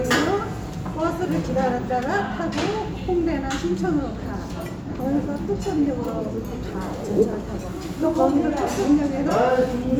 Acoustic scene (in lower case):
restaurant